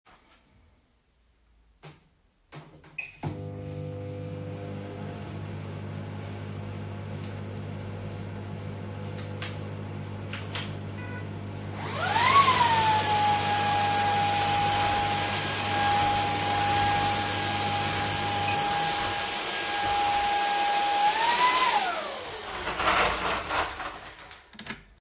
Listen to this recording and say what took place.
I turned on the microwave, then turned on the vacuum cleaner. After that I turned off the microwave and then the vacuum cleaner.